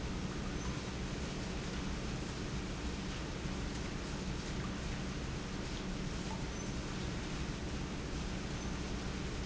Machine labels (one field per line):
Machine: pump